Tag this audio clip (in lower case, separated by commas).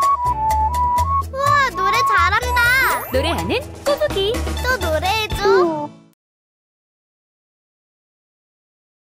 speech, music